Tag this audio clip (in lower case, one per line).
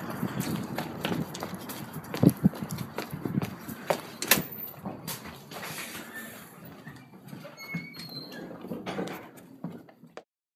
outside, urban or man-made
door